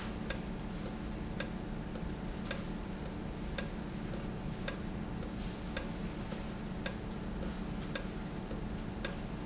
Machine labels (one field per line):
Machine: valve